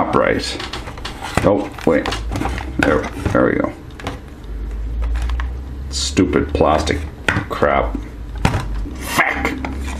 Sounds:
inside a small room, speech

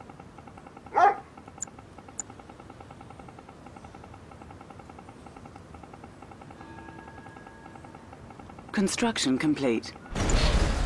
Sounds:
pets, animal, dog, bow-wow, speech

